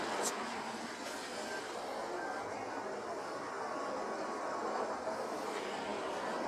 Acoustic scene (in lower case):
street